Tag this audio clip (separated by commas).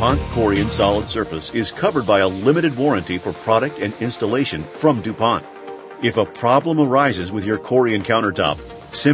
Music, Speech